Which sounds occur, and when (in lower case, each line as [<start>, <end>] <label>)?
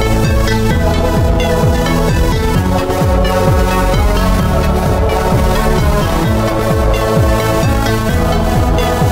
[0.00, 9.11] music